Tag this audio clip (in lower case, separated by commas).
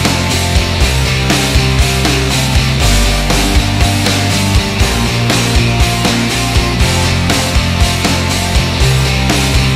music